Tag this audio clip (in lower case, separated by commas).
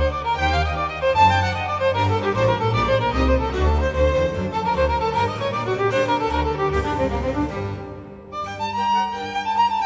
music, musical instrument, violin